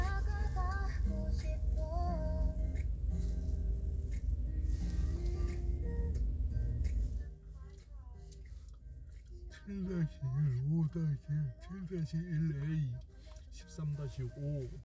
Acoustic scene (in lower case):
car